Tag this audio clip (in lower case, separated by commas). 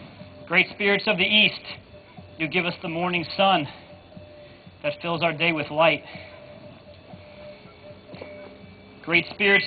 speech